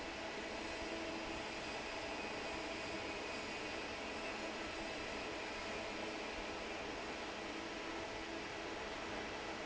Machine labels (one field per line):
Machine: fan